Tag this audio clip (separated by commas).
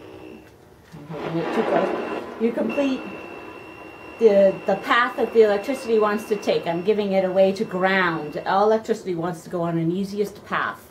Speech